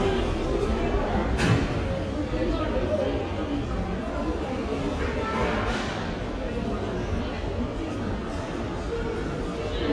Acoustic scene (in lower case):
subway station